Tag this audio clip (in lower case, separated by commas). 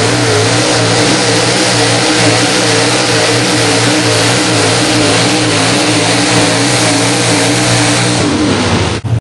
truck, vehicle